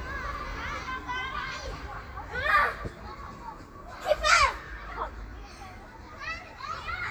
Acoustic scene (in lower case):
park